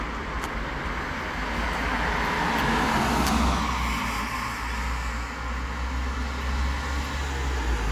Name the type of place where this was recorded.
street